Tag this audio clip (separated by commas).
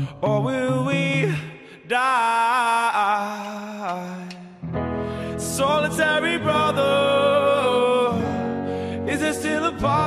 Music